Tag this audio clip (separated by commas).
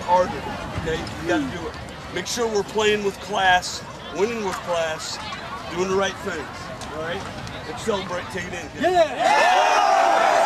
man speaking, Speech, Female speech, monologue